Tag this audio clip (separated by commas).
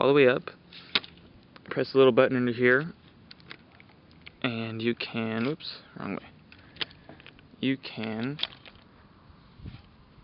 Speech